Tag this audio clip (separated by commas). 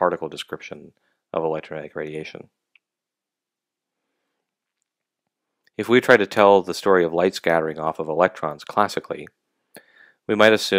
Speech